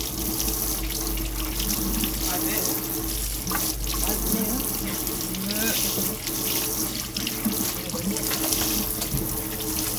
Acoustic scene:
kitchen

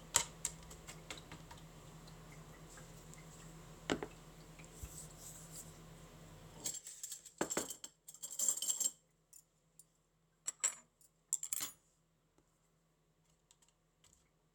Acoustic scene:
kitchen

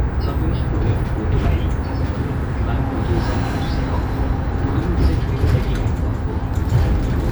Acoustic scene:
bus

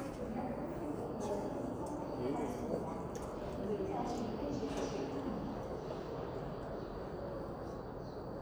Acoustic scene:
subway station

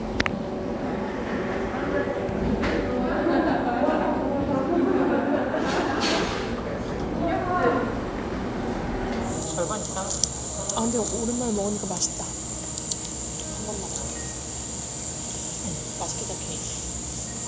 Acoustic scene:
cafe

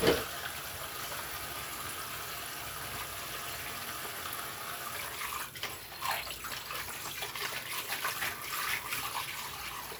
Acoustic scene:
kitchen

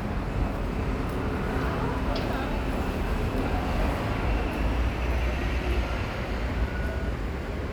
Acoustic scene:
street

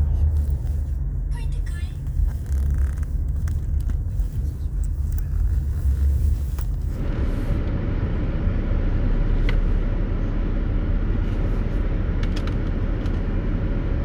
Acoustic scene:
car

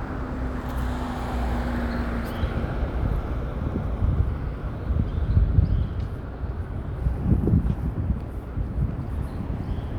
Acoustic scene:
residential area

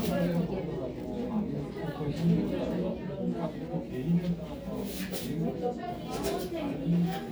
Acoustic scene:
crowded indoor space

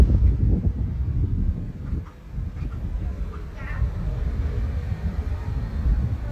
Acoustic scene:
residential area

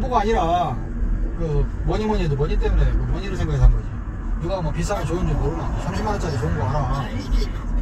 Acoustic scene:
car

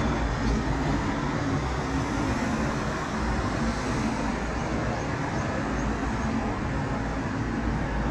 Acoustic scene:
residential area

